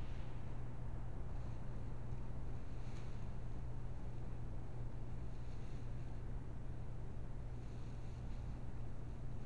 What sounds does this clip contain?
small-sounding engine